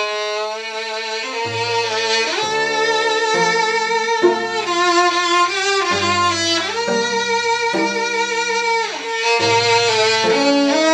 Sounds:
fiddle
cello
bowed string instrument

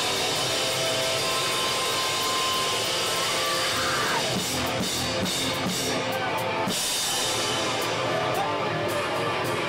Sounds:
music

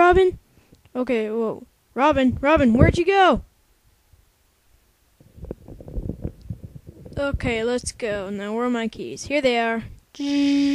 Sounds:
speech

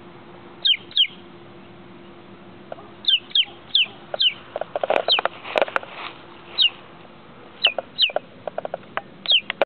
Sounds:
rooster

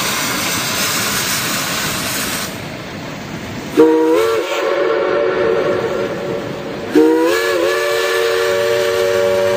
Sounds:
train whistling

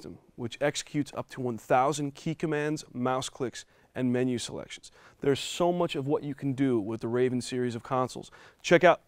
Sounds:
speech

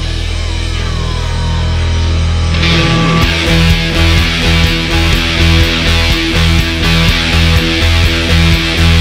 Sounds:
acoustic guitar
strum
plucked string instrument
musical instrument
guitar
music

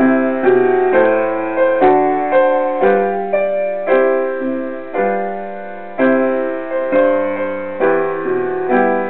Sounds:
music

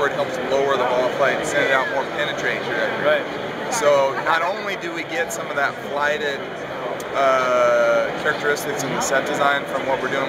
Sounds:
speech

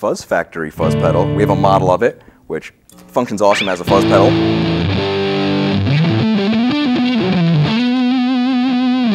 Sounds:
speech
music

